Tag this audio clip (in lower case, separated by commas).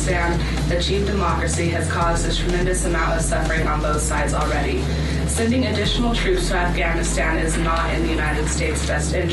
female speech, speech, music, monologue